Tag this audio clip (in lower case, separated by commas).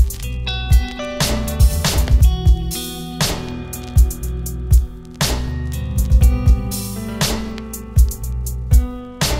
strum, plucked string instrument, electric guitar, musical instrument, music, guitar